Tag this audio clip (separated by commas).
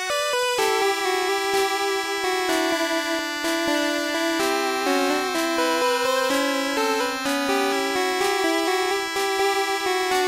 Music